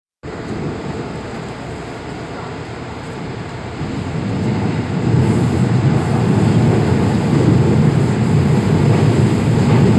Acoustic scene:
subway train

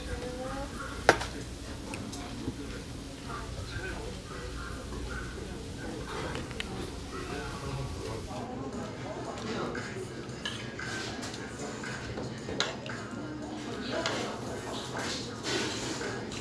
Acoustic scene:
restaurant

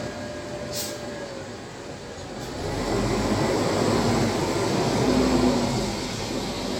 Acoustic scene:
street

